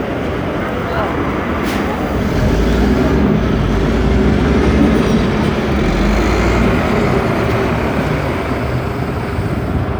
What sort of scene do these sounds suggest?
street